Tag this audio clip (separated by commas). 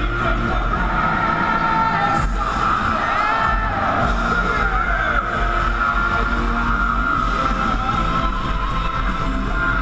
Music